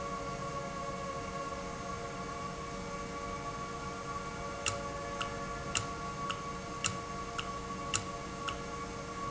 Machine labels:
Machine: valve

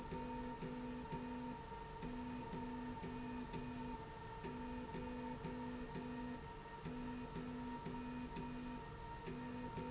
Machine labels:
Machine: slide rail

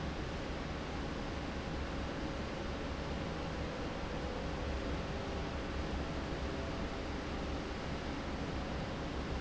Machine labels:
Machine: fan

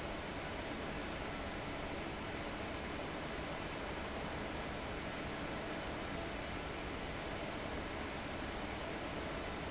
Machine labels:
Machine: fan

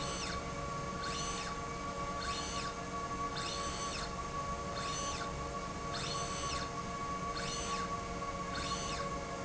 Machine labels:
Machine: slide rail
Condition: normal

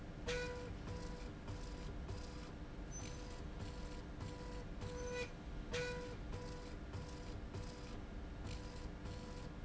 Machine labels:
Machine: slide rail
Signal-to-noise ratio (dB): 6 dB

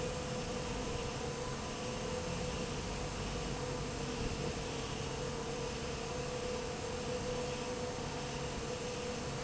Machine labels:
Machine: fan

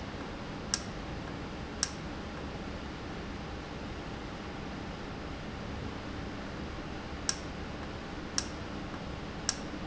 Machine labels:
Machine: valve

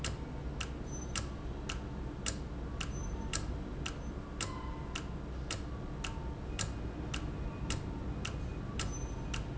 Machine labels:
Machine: valve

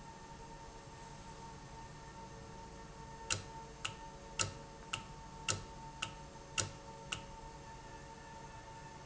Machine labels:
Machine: valve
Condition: normal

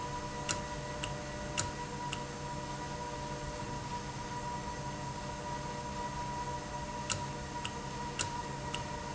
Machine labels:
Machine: valve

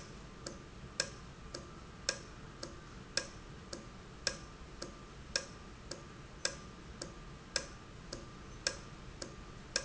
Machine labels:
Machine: valve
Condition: normal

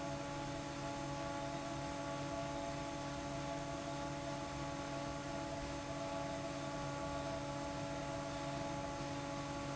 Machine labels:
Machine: fan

